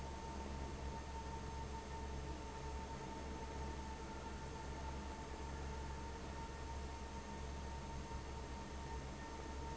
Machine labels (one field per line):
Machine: fan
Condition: abnormal